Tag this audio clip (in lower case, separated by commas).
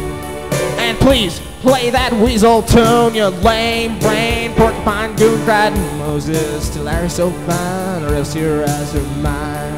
music, speech